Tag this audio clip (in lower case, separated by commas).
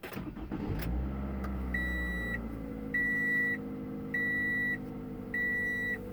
engine, motor vehicle (road), vehicle